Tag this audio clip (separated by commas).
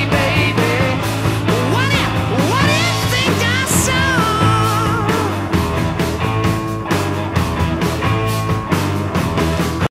Music